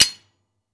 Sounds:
Tools

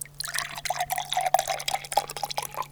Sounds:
Water, Liquid, Fill (with liquid)

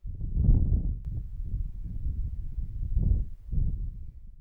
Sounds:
Wind

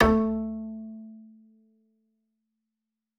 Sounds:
Musical instrument, Bowed string instrument, Music

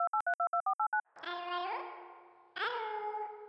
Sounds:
Alarm, Telephone

